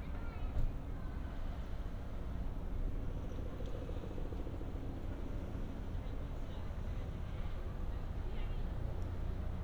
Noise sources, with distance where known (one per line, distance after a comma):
background noise